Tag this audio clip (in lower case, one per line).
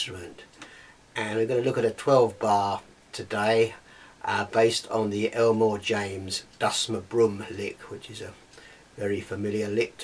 speech